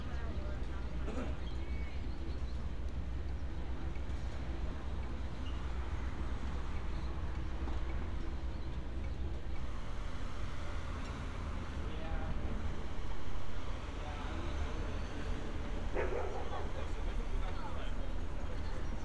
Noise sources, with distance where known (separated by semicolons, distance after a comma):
person or small group talking